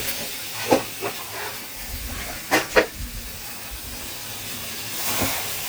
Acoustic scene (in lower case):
kitchen